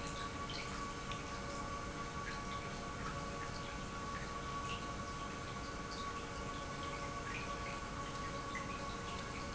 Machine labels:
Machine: pump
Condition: normal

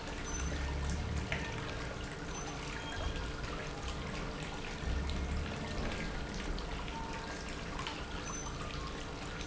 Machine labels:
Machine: pump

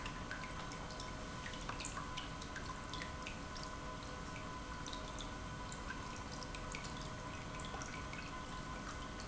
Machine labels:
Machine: pump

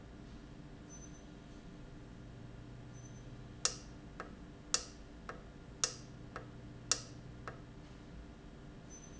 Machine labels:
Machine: valve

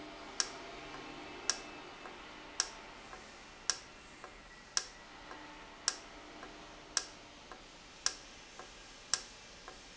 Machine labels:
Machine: valve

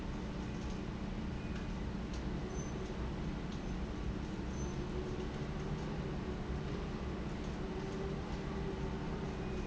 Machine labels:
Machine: fan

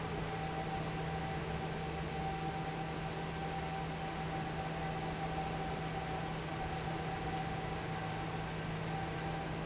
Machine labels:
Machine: fan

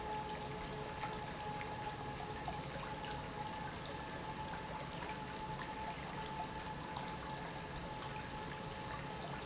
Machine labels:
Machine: pump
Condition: normal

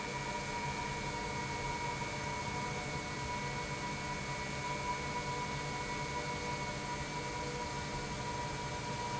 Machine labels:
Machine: pump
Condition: normal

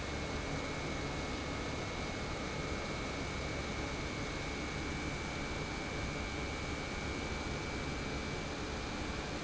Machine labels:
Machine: pump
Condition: normal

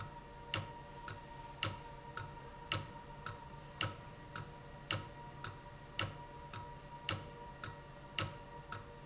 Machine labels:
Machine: valve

